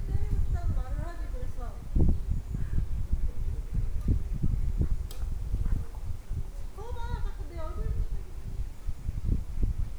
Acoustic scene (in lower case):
park